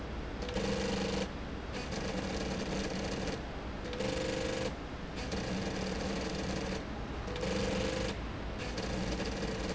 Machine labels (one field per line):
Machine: slide rail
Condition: abnormal